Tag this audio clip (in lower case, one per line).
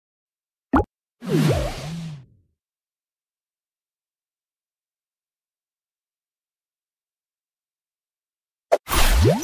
silence
plop